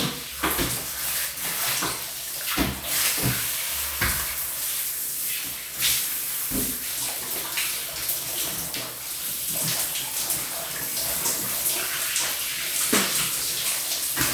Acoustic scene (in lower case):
restroom